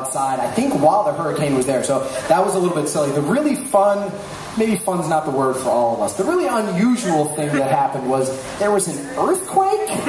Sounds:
Speech

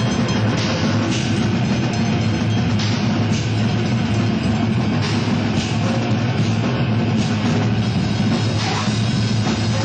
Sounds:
Music

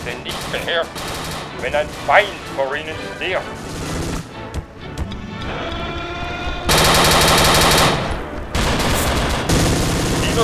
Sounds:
Fusillade, Music, Speech, Gunshot

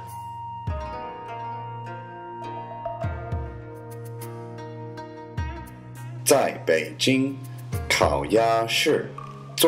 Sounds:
Music, Speech

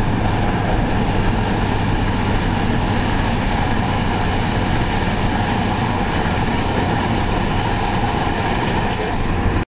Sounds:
Car

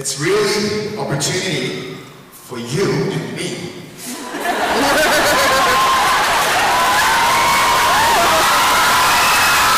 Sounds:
Speech

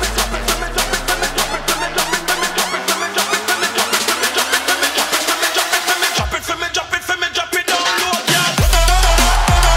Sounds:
Music, Funk

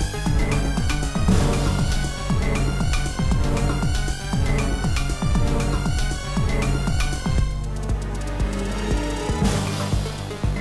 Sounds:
Music

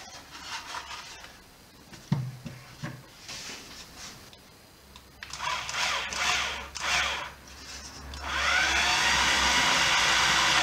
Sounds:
inside a large room or hall

